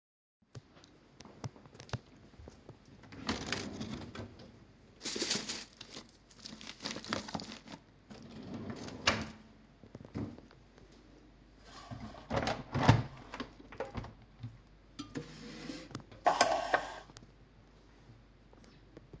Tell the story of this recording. I opened a drawer and rustled through the things inside. Then i closed the drawer and opened a nearby window. After the window was open i shifted around some pans that were in the way.